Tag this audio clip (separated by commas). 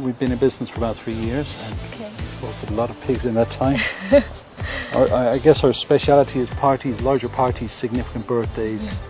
Speech, Music